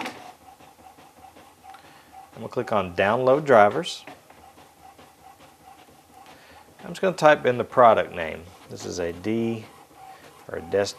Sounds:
speech

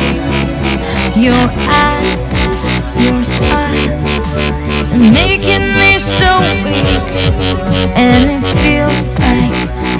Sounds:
dubstep
electronic music
music

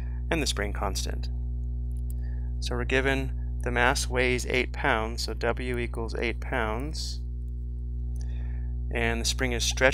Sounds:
speech

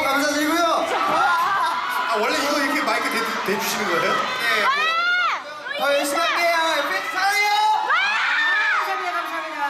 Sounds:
speech

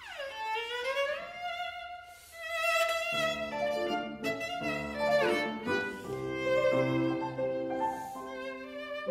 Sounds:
music
musical instrument
fiddle

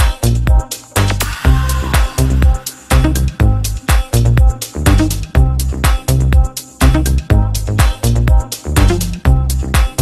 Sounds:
music
house music

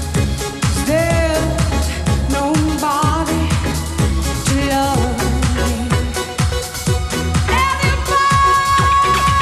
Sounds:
singing
music
electronic music

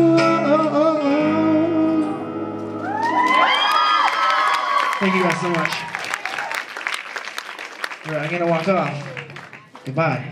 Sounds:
speech
music

